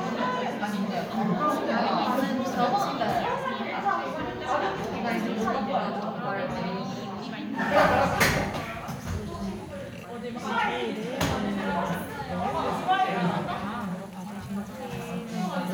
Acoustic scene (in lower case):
crowded indoor space